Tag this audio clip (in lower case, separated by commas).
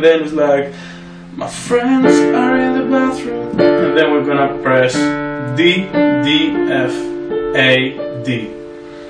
piano, keyboard (musical), musical instrument, speech, music